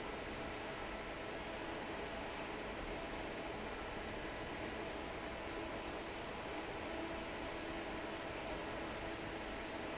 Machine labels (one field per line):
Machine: fan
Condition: normal